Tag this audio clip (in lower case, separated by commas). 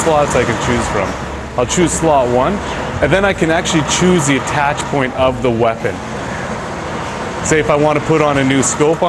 speech